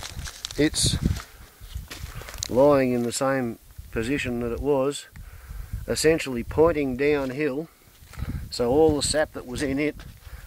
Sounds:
Speech

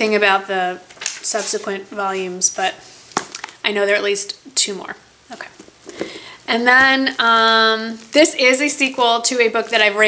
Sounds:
Speech

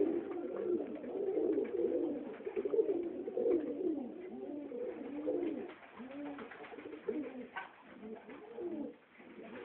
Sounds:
Pigeon, Coo, bird call, Bird

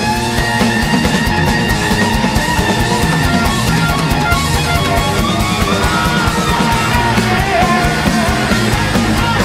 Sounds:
Music, Singing

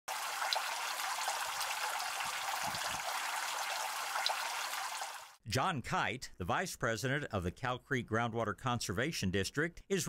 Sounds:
Speech, Water

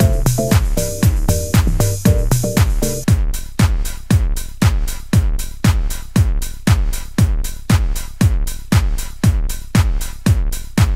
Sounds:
Techno, Electronica, Music, Trance music

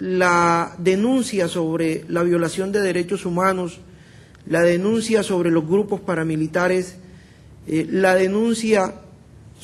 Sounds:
monologue, man speaking, Speech, Speech synthesizer

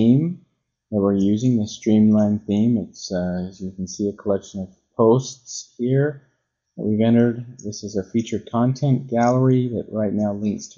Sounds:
Speech

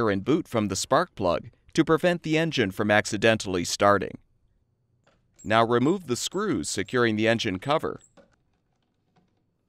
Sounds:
Speech

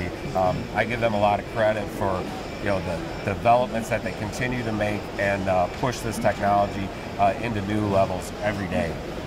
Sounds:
Speech

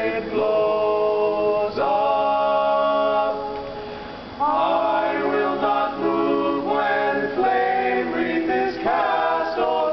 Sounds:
Music

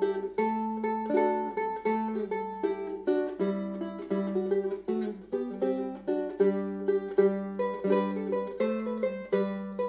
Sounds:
Music, Plucked string instrument, Strum, Musical instrument, Acoustic guitar, Guitar

